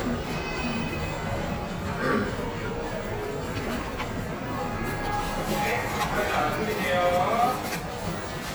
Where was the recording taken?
in a cafe